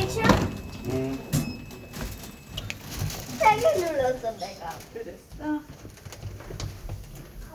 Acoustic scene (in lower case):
elevator